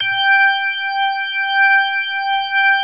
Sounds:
Organ, Musical instrument, Music, Keyboard (musical)

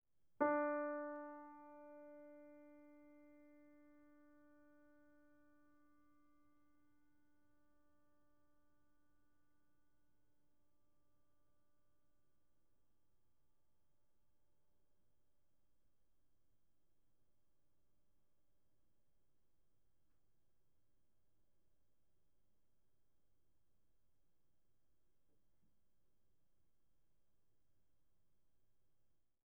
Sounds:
Piano, Musical instrument, Music, Keyboard (musical)

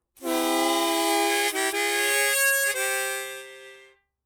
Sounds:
Musical instrument, Music, Harmonica

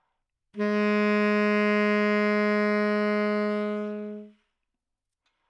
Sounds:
woodwind instrument, Musical instrument, Music

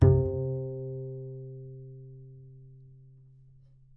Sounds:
Music, Bowed string instrument, Musical instrument

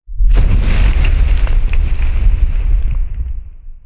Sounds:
Fire

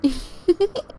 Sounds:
Human voice, Giggle, Laughter

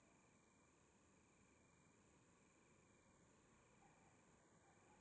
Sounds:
Insect, Animal, Cricket, Wild animals

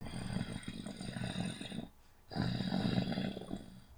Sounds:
Animal

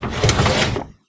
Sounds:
Drawer open or close, home sounds

